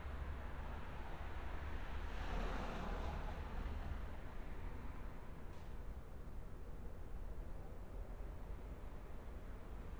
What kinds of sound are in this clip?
background noise